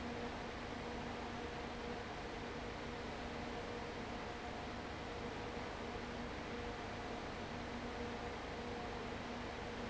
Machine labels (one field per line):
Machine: fan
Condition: abnormal